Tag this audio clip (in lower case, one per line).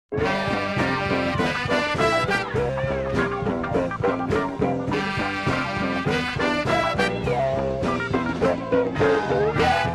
music
swing music